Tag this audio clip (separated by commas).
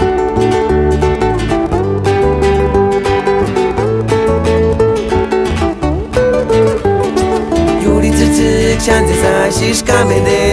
Music, Traditional music